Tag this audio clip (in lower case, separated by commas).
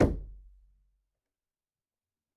knock, domestic sounds, door